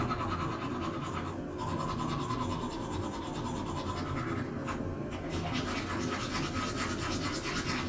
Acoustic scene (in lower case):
restroom